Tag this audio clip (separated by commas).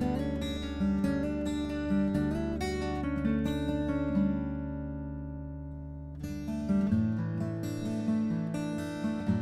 Acoustic guitar, Strum, Guitar, Music, Plucked string instrument, Musical instrument